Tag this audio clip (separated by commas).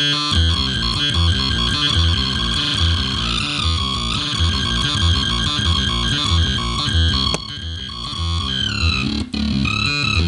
Music, Sampler